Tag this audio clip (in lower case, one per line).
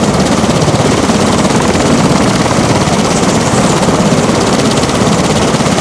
aircraft
vehicle